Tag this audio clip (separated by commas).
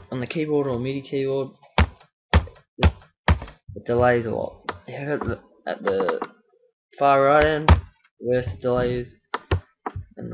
Speech